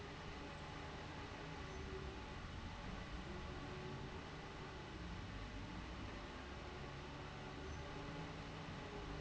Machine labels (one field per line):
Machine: fan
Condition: abnormal